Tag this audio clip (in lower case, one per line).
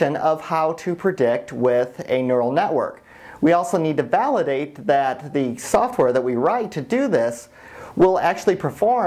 speech